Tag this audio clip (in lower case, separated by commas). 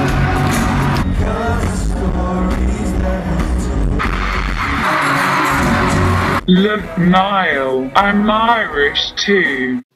singing, music, pop music